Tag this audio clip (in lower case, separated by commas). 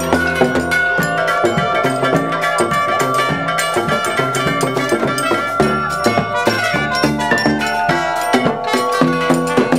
music, percussion